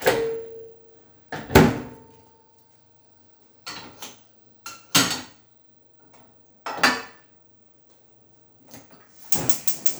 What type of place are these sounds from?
kitchen